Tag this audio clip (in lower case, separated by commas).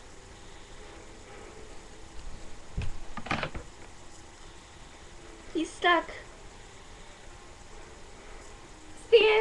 mechanisms